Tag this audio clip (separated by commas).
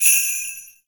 Bell